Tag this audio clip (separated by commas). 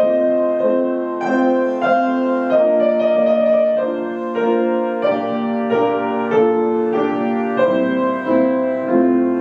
Music